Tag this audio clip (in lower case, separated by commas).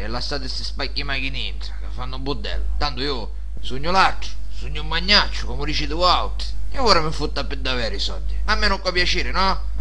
man speaking, speech